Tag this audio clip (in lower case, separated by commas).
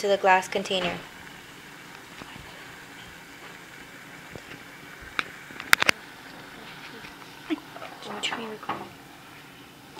inside a small room, speech